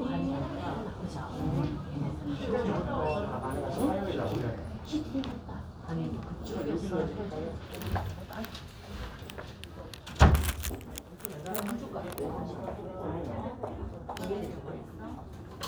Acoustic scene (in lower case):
crowded indoor space